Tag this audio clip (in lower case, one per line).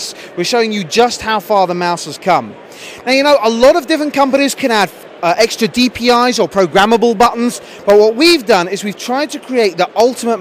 speech